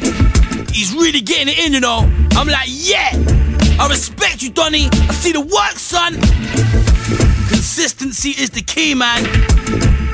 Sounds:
music
speech

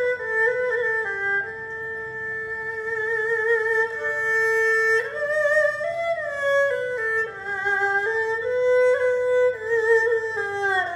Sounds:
playing erhu

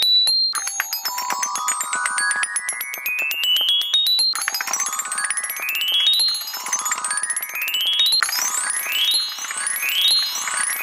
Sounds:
xylophone
music

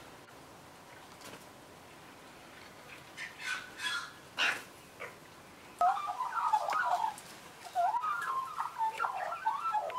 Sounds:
magpie calling

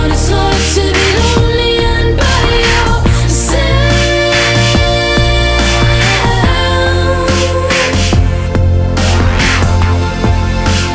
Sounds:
trance music
music

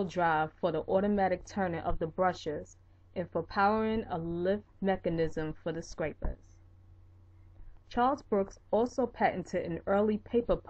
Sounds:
speech

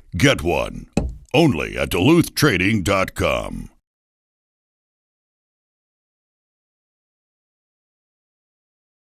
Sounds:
speech

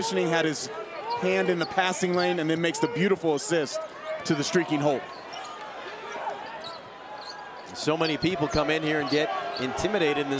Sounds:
speech

